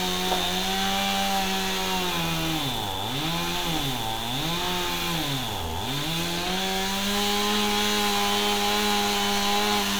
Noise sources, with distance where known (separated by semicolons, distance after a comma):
chainsaw, near